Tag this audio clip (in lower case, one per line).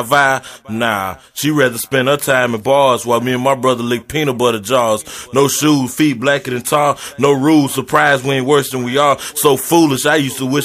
speech